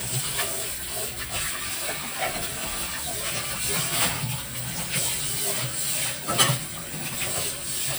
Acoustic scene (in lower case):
kitchen